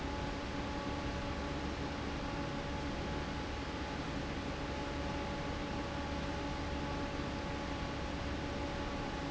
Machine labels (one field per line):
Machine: fan